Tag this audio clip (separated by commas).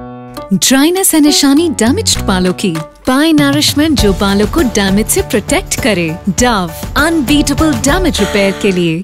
Music, Speech